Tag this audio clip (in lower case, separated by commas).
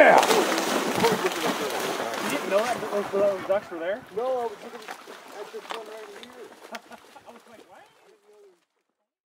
speech